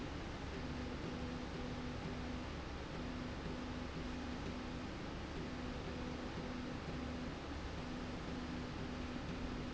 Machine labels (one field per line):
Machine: slide rail